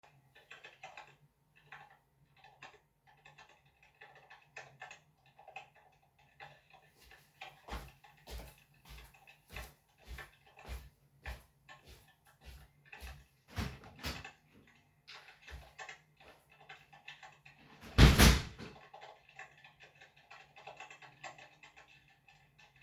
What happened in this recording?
I was working on my laptop. While doing that somebody wallked past me, went to the door, opened the door, went out and closed the door.